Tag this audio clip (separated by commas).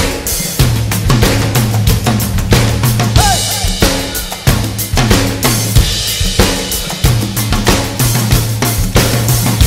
Rimshot, Percussion, Drum roll, Bass drum, Drum kit, Snare drum, Drum